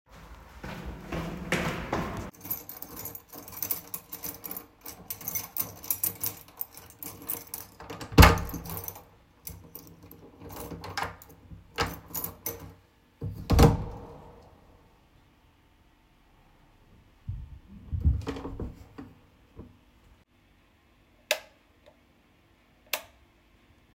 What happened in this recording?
Walked towards my door, took out my keys from my pocket, opened the door with it, closed the door and switched on the lights